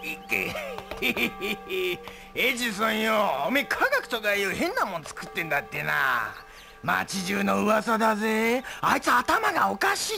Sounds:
speech

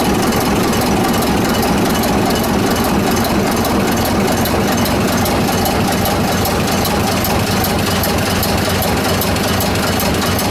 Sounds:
heavy engine (low frequency), idling

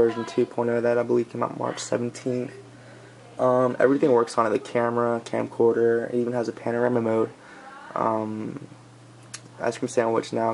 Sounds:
speech

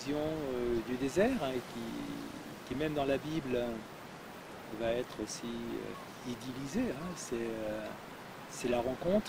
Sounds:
speech

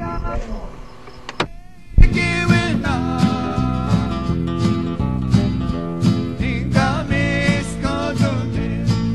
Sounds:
music, gospel music

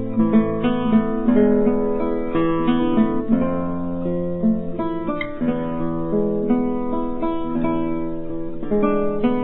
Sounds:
musical instrument, acoustic guitar, music, guitar, plucked string instrument

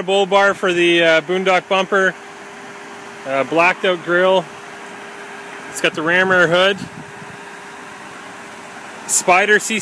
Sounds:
speech, car, motor vehicle (road), vehicle

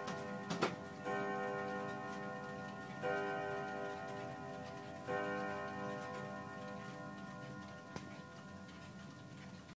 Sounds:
tick-tock, tick

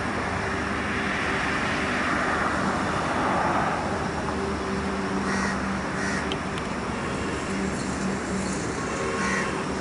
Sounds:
vehicle, roadway noise

